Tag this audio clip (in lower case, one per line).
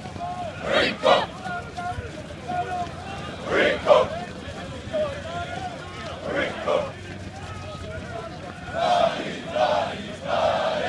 run
speech
crowd